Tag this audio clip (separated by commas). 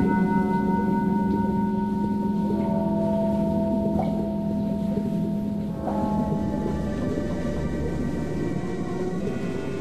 Music